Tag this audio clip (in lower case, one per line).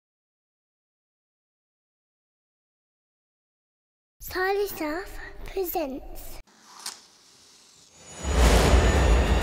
silence
speech
music